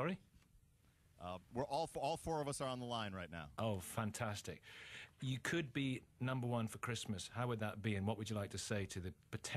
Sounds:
speech

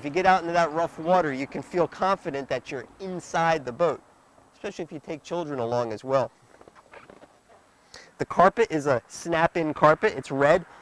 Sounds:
speech

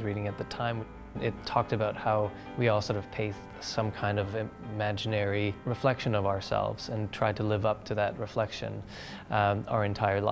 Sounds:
music, speech

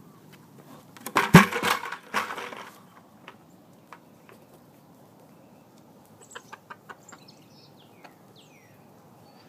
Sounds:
rooster

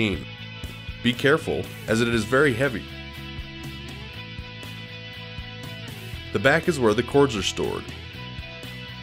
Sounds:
pop music, rhythm and blues, music, speech

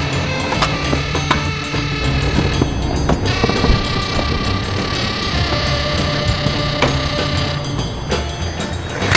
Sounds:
skateboard, music

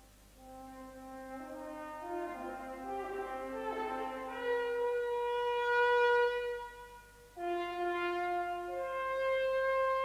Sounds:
french horn, music

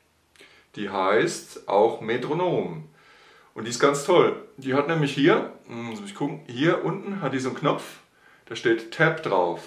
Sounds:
metronome

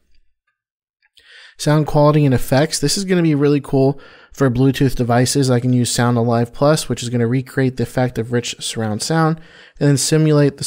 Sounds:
speech

